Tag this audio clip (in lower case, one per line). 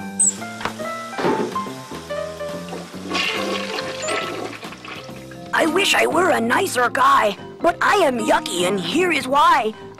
inside a small room
music
speech